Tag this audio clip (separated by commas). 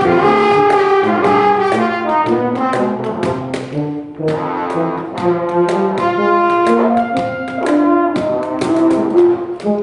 Music, Brass instrument